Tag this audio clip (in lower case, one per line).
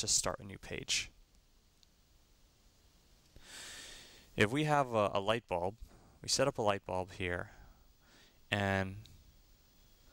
speech
inside a small room